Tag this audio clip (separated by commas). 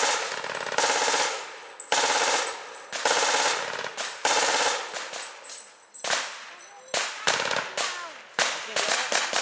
machine gun shooting